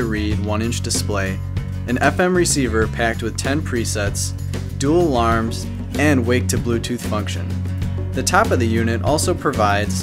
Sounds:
Speech, Music

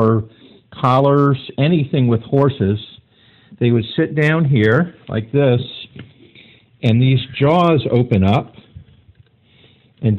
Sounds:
Speech

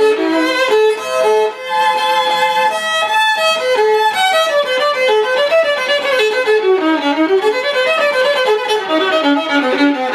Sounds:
Music, Musical instrument, Violin

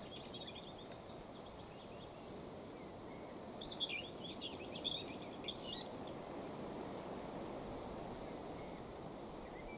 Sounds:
cuckoo bird calling

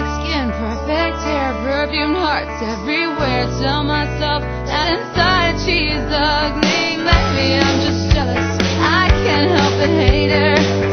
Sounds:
Music

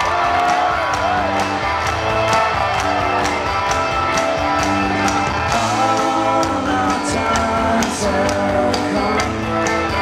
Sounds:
Music

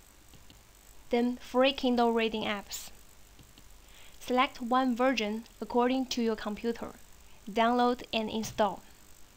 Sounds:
monologue

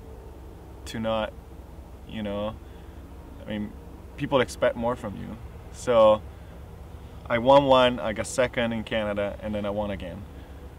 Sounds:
Speech

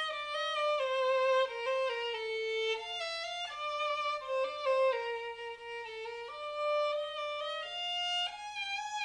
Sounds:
Violin, Musical instrument, Music

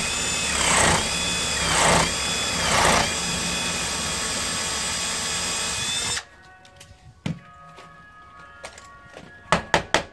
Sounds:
Door, Music

